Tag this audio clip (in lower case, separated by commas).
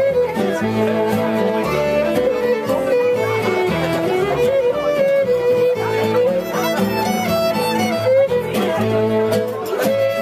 violin, bowed string instrument